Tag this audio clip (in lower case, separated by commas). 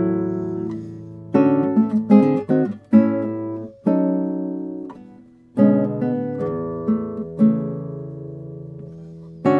acoustic guitar, musical instrument, strum, plucked string instrument, guitar, music